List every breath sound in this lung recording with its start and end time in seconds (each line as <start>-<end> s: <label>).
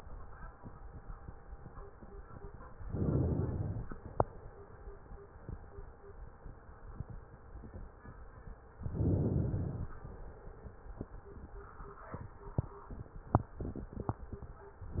2.83-4.26 s: inhalation
4.25-5.25 s: exhalation
8.80-9.90 s: inhalation
9.90-10.89 s: exhalation
14.81-15.00 s: inhalation